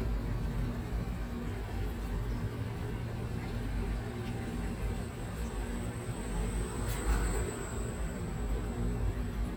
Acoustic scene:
residential area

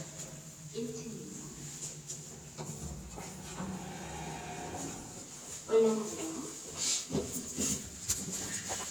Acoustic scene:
elevator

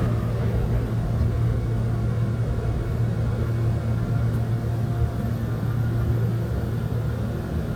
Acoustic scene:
subway train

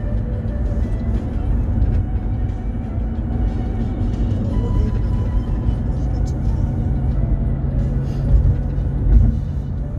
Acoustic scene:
car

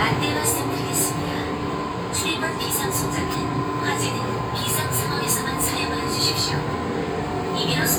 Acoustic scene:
subway train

